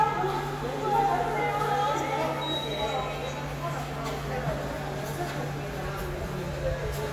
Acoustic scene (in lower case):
subway station